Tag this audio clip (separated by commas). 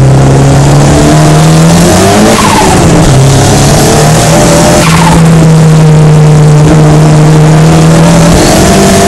Race car, Car, Vehicle, Skidding